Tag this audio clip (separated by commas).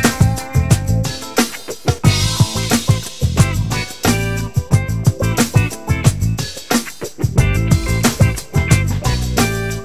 Music